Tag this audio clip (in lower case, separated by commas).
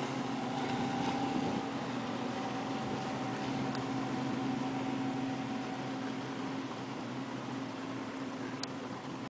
speedboat, vehicle, water vehicle, motorboat